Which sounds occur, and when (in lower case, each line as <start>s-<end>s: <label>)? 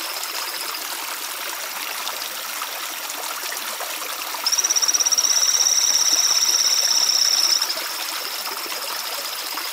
0.0s-0.8s: frog
0.0s-9.7s: stream
0.0s-9.7s: wind
4.4s-9.7s: frog